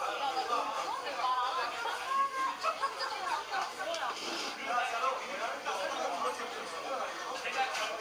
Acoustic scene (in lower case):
restaurant